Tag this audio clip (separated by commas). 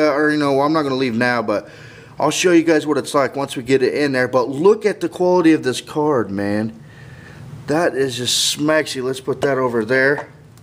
Speech, inside a small room